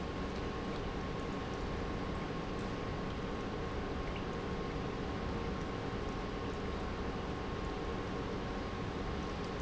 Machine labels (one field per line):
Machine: pump